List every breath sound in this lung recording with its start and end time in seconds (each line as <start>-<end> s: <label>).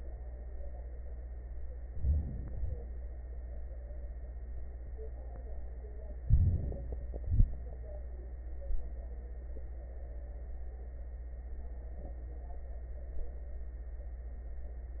1.86-2.80 s: inhalation
6.26-7.19 s: inhalation
7.19-7.55 s: exhalation